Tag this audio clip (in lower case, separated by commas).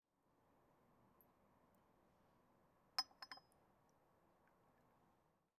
chink, glass